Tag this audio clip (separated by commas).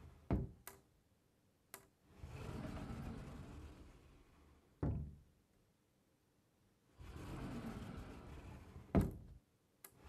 Door, Sound effect, Sliding door